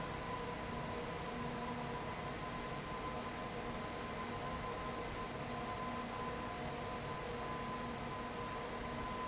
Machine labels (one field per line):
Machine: fan